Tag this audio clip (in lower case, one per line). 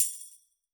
musical instrument
music
percussion
tambourine